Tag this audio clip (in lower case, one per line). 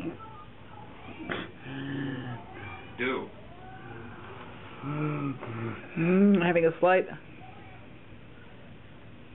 inside a small room
speech